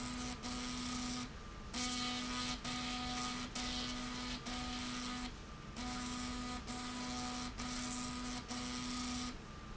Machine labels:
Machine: slide rail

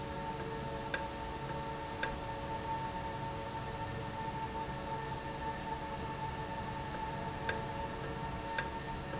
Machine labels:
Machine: valve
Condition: normal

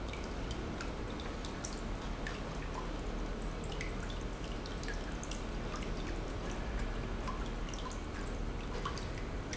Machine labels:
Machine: pump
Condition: normal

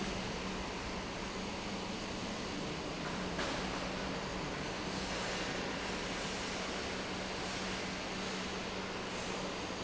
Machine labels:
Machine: pump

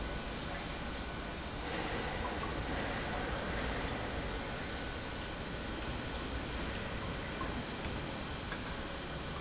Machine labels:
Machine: pump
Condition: normal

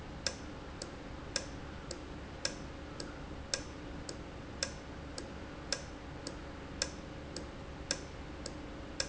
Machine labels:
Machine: valve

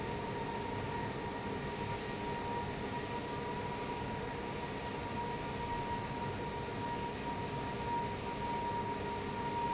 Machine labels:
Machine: fan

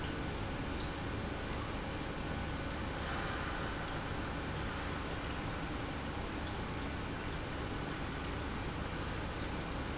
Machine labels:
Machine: pump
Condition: normal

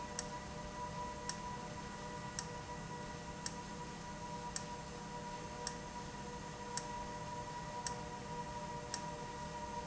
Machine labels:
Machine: valve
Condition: abnormal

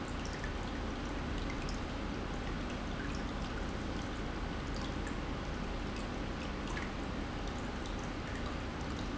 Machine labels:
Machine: pump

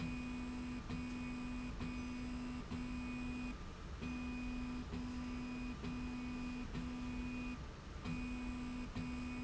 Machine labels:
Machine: slide rail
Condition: normal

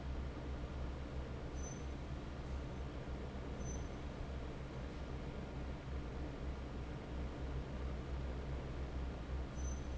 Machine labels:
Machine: fan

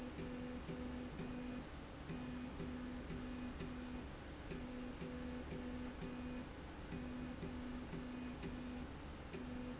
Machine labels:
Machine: slide rail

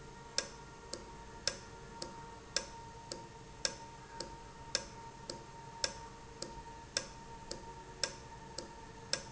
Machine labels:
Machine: valve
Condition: normal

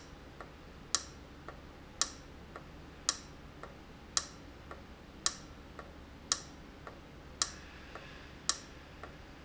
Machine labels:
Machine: valve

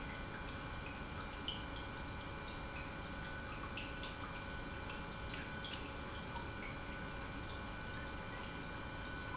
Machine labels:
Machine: pump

